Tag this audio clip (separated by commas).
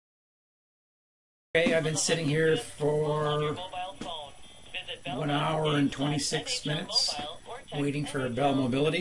Speech